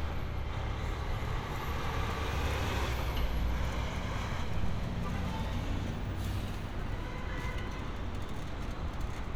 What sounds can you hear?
large-sounding engine, car horn